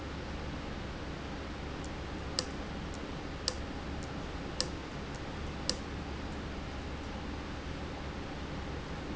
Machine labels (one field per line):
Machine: valve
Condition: abnormal